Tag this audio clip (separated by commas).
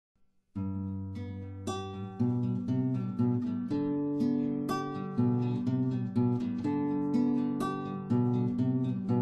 Music, Acoustic guitar